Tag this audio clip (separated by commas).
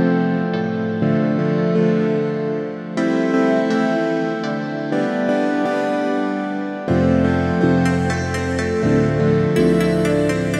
Music